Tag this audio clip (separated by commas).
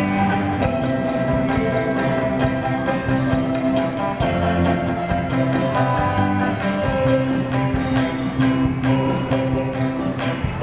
Jingle (music), Music